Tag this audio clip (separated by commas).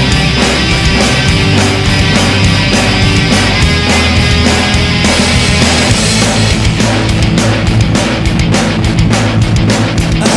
Music, Drum, Drum kit, inside a small room, Musical instrument